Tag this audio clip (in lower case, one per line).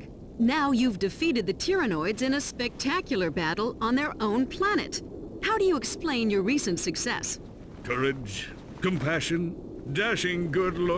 speech